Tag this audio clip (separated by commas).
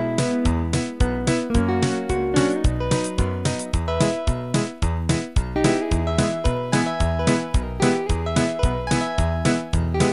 Music, Musical instrument